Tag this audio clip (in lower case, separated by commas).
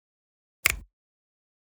hands, finger snapping